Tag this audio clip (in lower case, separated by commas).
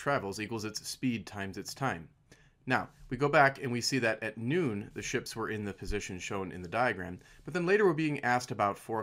speech